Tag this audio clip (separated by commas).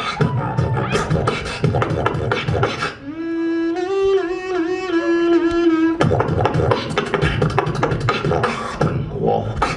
Beatboxing